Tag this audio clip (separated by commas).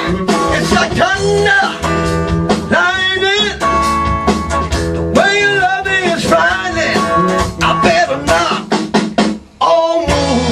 Guitar, Musical instrument, Plucked string instrument, Strum, Music, Drum